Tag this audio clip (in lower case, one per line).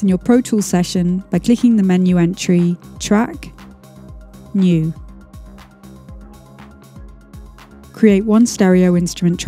speech
music